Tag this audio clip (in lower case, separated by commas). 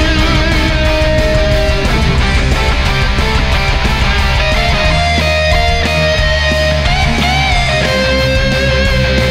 plucked string instrument, strum, guitar, bass guitar, music, musical instrument